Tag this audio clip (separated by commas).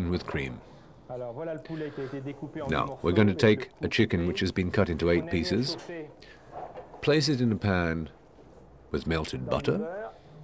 Speech